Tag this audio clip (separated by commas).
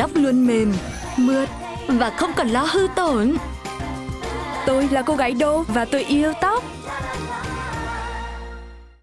Music, Speech